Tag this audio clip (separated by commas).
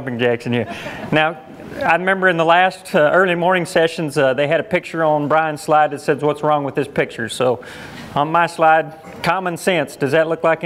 Speech